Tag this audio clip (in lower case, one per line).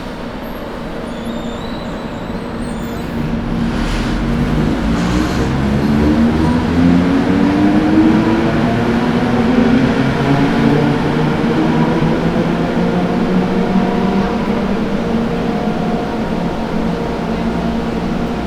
vehicle
rail transport
train